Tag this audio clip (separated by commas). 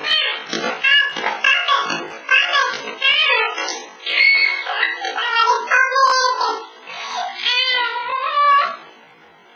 Speech